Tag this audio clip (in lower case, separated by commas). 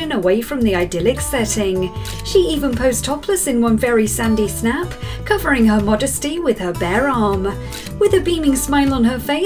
speech, music